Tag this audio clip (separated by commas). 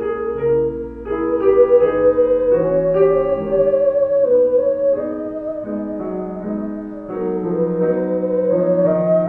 playing theremin